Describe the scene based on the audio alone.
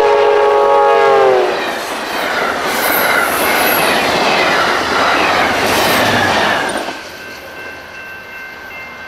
Train blowing its whistle while rushing past, with bells ringing in the background